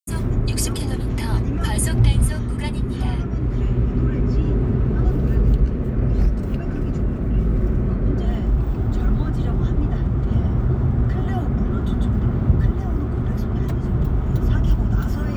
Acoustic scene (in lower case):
car